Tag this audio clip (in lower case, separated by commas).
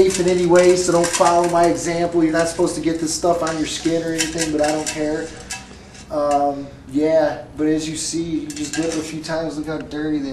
speech